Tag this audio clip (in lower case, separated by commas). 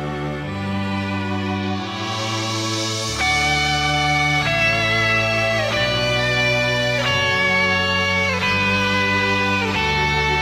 music, guitar, electric guitar, plucked string instrument, musical instrument, strum